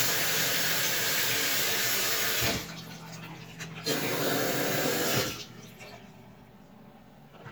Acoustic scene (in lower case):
restroom